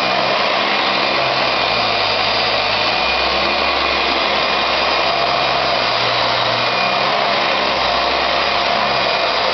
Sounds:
inside a small room
vacuum cleaner

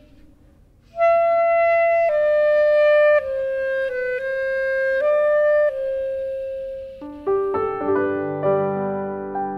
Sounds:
woodwind instrument
music

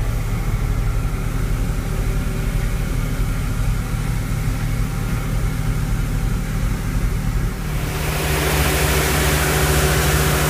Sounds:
vehicle
truck

